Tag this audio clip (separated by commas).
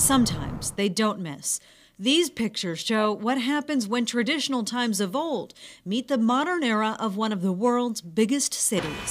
Speech